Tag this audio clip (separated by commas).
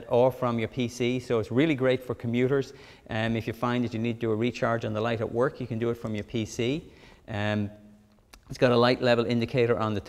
Speech